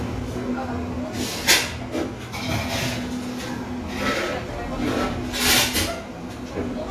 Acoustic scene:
cafe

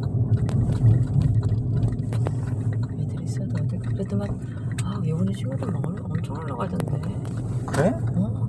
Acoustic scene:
car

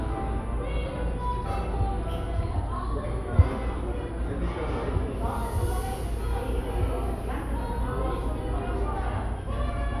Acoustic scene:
cafe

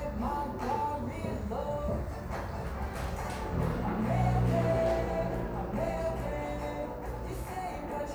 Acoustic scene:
cafe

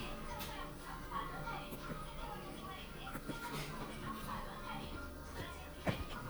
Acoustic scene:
elevator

